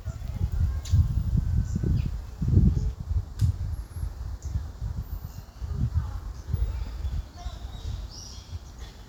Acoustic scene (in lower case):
park